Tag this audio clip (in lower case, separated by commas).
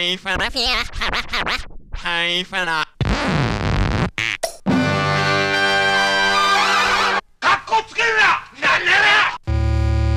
speech, beep, music